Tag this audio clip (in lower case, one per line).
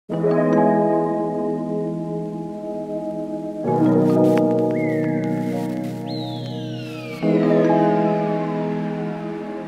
music